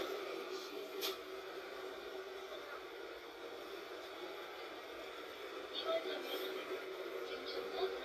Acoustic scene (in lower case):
bus